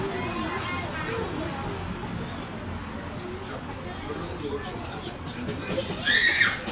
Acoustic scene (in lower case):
park